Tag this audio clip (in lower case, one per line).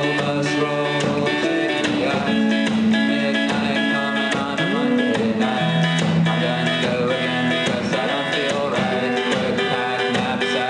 music